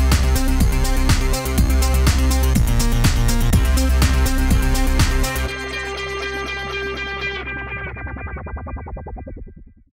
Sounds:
music

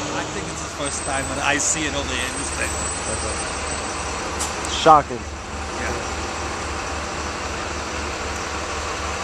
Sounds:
outside, urban or man-made
speech

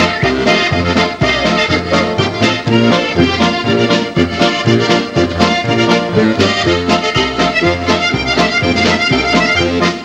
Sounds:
music
musical instrument

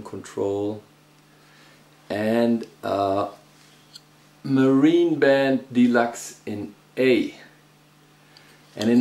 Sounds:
speech

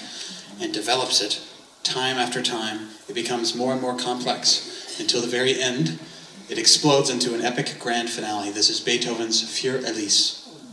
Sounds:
speech

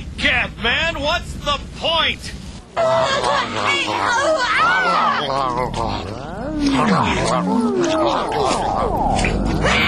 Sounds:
speech

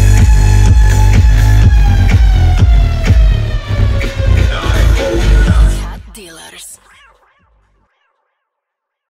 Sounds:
music
dance music

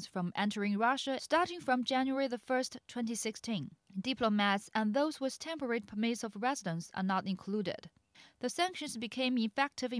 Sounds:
speech

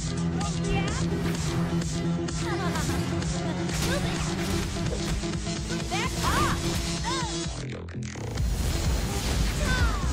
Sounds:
speech
music

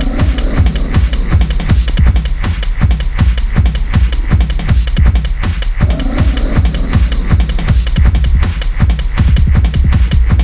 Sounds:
music
electronic music
techno

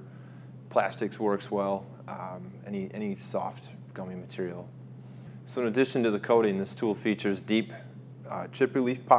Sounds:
speech

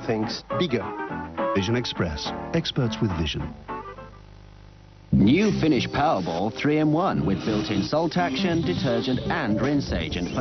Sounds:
music
speech

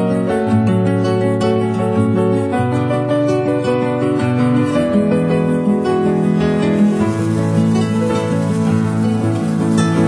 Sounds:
music

